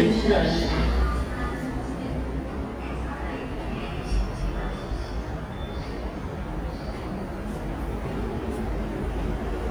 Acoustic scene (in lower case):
subway station